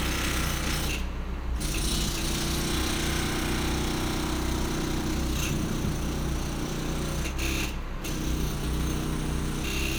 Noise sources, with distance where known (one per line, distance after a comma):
rock drill